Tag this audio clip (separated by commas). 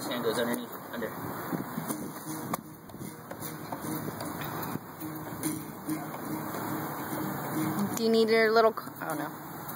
Speech, Strum, Musical instrument, Music, Acoustic guitar, Guitar